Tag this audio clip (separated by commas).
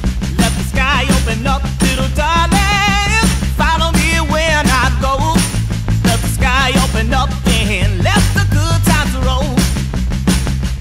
Music